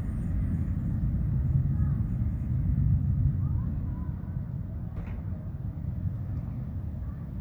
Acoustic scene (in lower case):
residential area